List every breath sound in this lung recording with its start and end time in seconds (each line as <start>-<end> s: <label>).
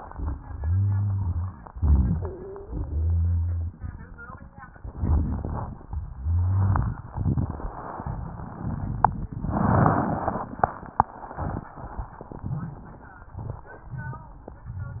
0.58-1.52 s: rhonchi
1.71-2.60 s: inhalation
1.79-2.33 s: rhonchi
2.17-2.86 s: stridor
2.63-4.20 s: exhalation
2.68-3.72 s: rhonchi
4.77-5.84 s: inhalation
4.79-5.88 s: crackles
6.15-6.94 s: rhonchi